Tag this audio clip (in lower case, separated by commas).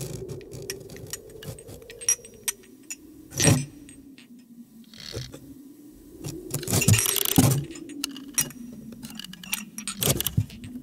hum